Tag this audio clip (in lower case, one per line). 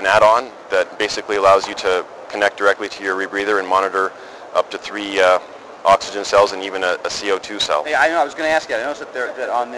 speech